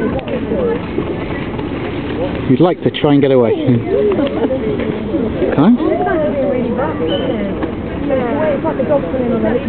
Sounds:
bird wings flapping, flapping wings

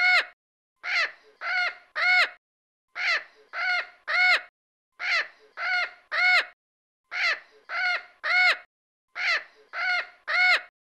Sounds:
crow cawing

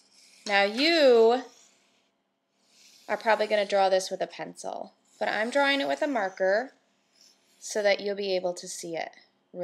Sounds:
Speech

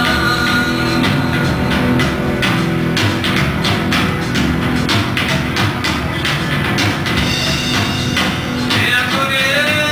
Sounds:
Music

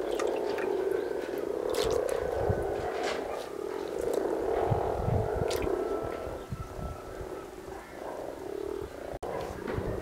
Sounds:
frog croaking

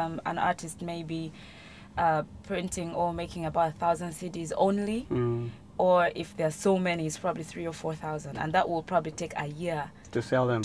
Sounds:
Speech

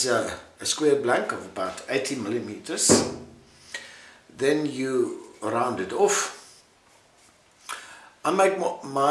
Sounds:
Speech

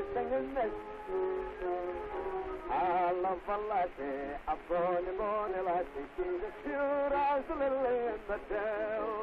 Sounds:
Funny music, Music

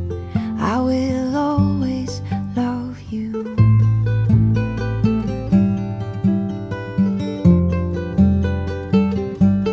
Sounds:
Flamenco, Plucked string instrument, Singing

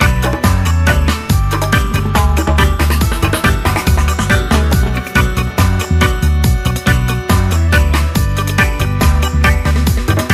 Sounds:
Music

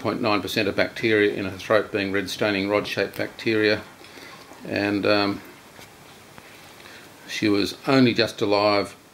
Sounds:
Speech

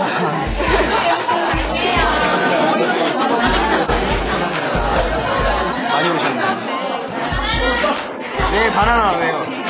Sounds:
Music, Speech

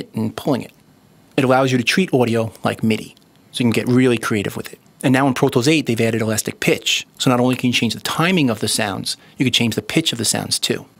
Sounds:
Speech

